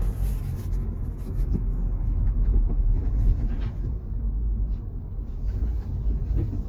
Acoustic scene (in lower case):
car